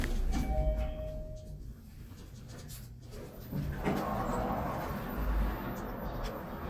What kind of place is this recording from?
elevator